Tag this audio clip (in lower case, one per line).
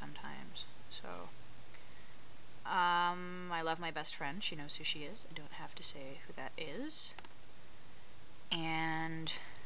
speech